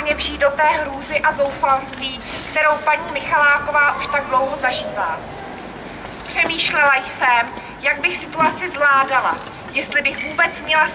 A female is speaking